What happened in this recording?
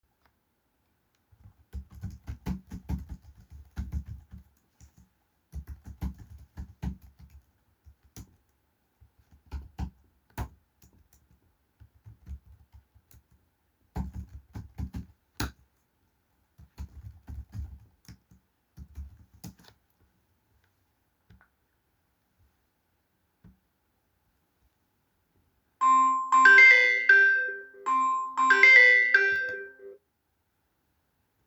I was in the room typing on my laptop when my phone rang.